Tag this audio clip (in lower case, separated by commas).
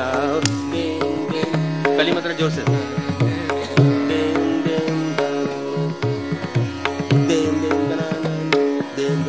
classical music, singing, speech, sitar, music, carnatic music